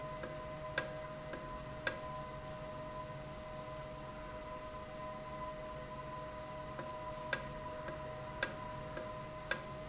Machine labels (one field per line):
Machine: valve